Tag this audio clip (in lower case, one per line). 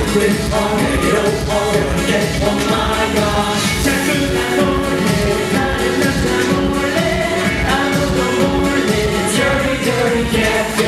music